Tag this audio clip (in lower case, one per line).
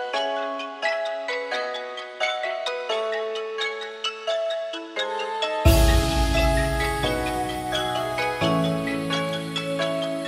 music